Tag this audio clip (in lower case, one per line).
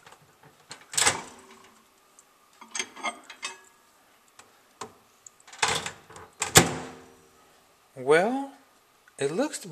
speech
inside a small room